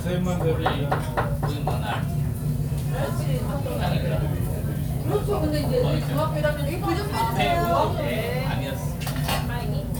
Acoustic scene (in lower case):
restaurant